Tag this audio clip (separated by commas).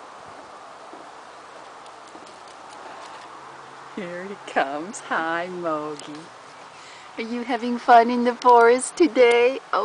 Speech